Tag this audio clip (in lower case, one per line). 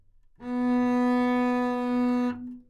musical instrument
bowed string instrument
music